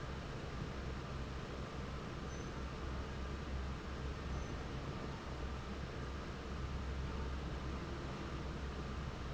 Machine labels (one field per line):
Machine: fan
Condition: normal